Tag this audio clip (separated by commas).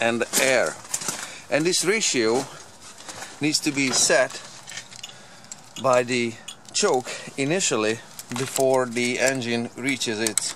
Speech